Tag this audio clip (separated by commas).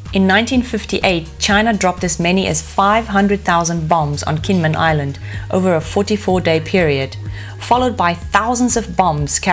Music, Speech